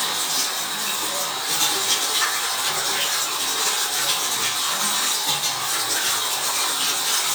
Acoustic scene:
restroom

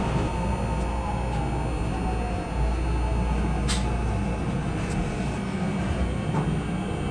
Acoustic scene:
subway train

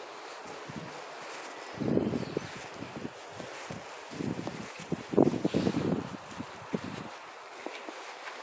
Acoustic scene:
residential area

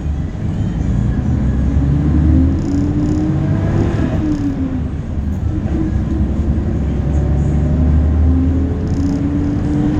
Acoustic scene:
bus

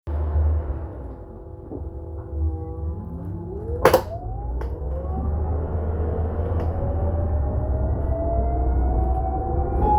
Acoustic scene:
bus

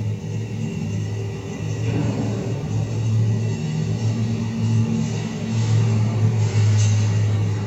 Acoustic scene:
elevator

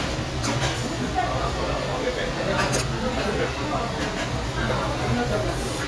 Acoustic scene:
restaurant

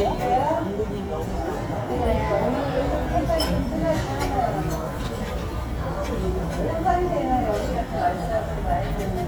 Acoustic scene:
restaurant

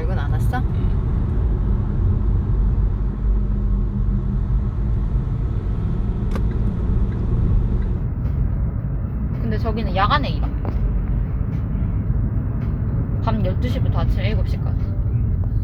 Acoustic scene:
car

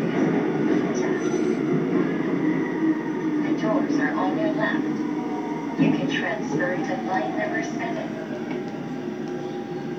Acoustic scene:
subway train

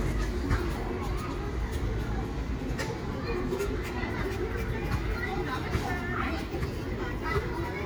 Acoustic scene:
residential area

